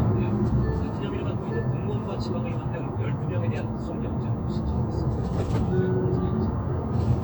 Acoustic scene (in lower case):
car